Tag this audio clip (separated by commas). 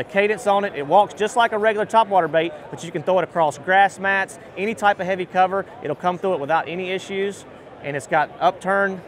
Speech